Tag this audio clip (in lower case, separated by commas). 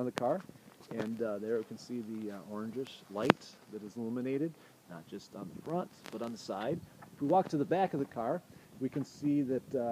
speech